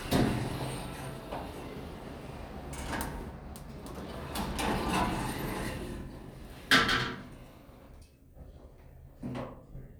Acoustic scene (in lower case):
elevator